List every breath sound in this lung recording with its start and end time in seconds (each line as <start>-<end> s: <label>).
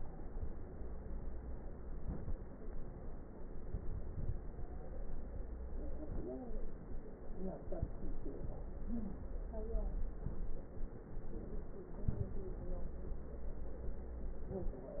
1.79-2.55 s: inhalation
3.37-4.61 s: inhalation
3.37-4.61 s: crackles
11.99-13.23 s: inhalation
11.99-13.23 s: crackles